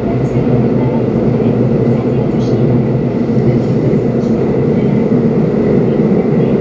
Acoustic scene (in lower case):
subway train